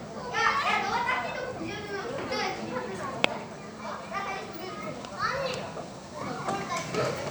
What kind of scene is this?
park